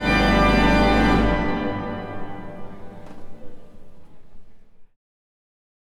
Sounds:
Musical instrument, Keyboard (musical), Music, Organ

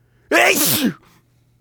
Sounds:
Sneeze, Respiratory sounds

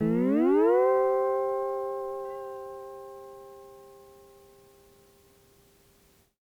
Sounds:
Musical instrument, Guitar, Plucked string instrument, Music

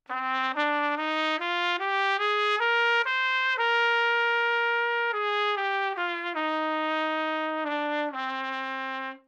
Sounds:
Musical instrument, Music, Trumpet, Brass instrument

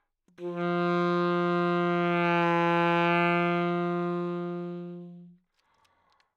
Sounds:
Music, Musical instrument, Wind instrument

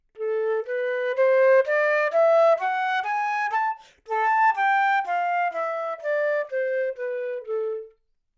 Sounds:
Musical instrument, woodwind instrument, Music

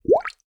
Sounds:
Gurgling, Water

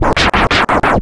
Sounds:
Musical instrument, Scratching (performance technique), Music

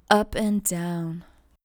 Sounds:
Speech, woman speaking, Human voice

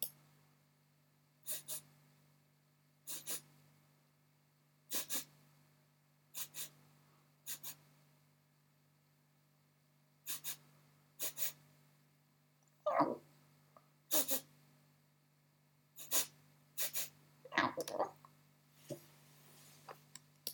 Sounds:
Respiratory sounds

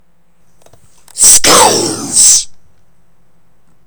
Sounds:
Human voice, Speech

